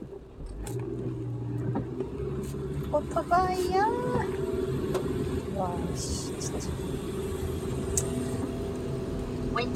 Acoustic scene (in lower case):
car